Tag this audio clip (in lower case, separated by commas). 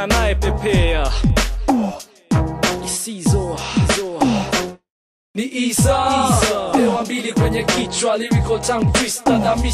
hip hop music, music